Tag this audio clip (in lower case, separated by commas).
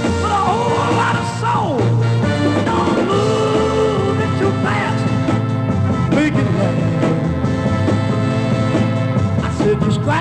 music